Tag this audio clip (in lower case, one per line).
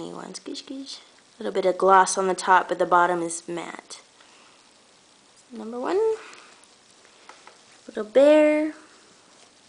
speech
inside a small room